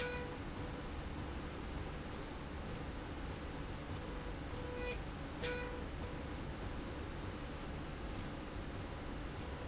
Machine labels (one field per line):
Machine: slide rail